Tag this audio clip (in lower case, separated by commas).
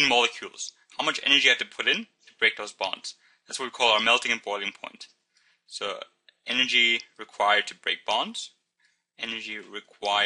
speech